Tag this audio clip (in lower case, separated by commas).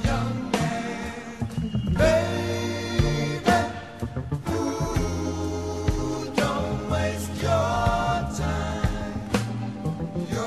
choir, music, male singing